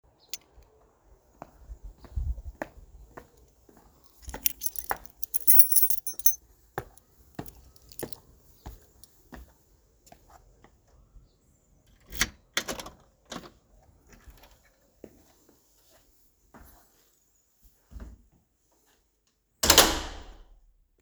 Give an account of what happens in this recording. I'm walking in the driveway towards the main entry, pulling out my keys, open the door and close it again